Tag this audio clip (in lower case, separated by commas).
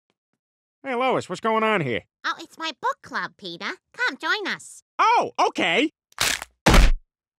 inside a large room or hall, speech